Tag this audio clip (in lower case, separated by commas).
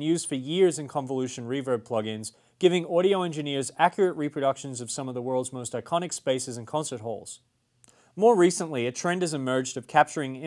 speech